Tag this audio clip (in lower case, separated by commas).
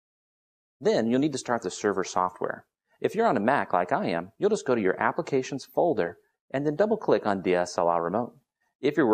speech